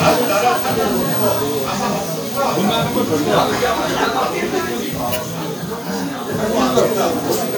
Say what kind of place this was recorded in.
crowded indoor space